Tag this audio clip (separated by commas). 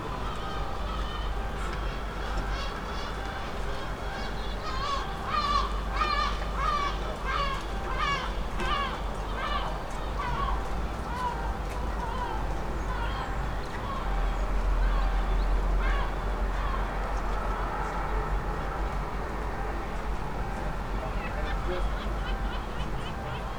seagull, Animal, Bird, Wild animals